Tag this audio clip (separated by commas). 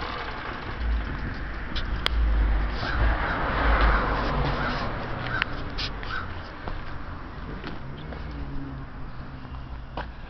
Vehicle, outside, urban or man-made, Motorcycle